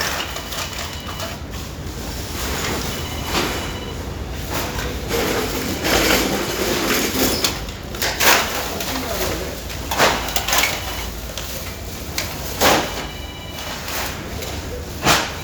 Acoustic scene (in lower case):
residential area